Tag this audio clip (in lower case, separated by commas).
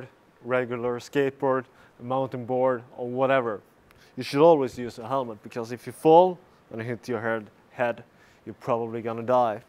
speech